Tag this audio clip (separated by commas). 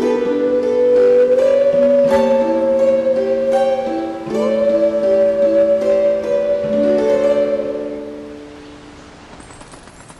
Music